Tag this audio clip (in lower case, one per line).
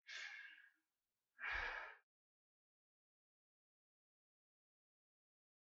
respiratory sounds
breathing